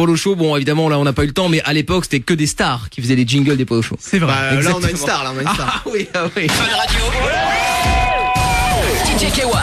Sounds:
speech, music

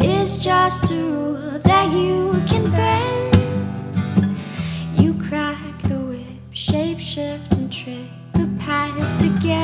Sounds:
music

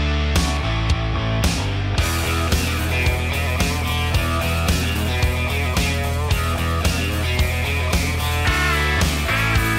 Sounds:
music

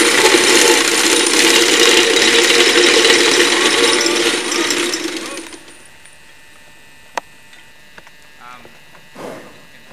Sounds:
speech

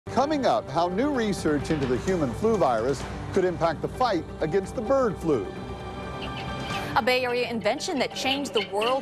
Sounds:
speech, music

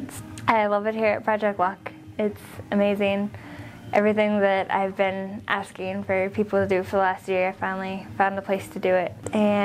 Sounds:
speech

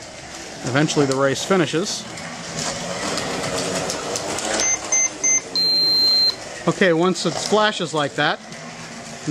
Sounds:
speech

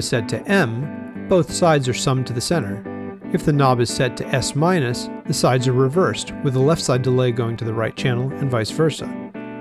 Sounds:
music, speech, musical instrument

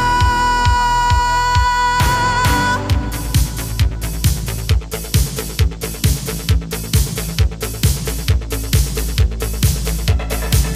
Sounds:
music, rhythm and blues

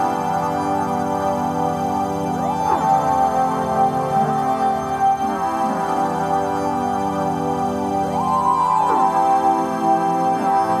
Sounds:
music

